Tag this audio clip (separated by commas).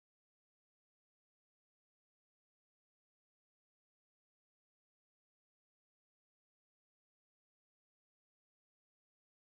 Guitar, Music, Acoustic guitar, Musical instrument, Plucked string instrument, Strum